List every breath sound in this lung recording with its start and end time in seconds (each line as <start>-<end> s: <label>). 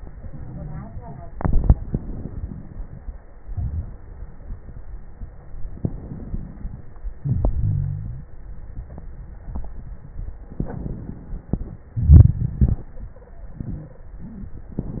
1.81-3.32 s: inhalation
1.81-3.32 s: crackles
3.35-5.74 s: exhalation
3.35-5.74 s: crackles
5.76-7.18 s: inhalation
5.76-7.18 s: crackles
7.19-8.88 s: exhalation
7.55-8.30 s: wheeze
10.51-11.94 s: inhalation
10.51-11.94 s: crackles
11.96-13.54 s: exhalation
12.94-14.09 s: stridor